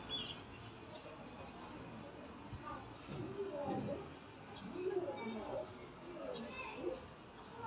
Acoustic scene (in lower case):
residential area